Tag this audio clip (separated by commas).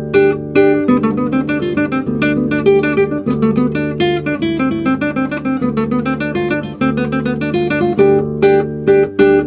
Plucked string instrument, Guitar, Music, Acoustic guitar, Musical instrument